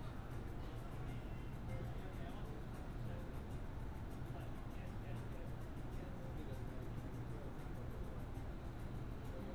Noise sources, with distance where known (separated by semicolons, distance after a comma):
unidentified human voice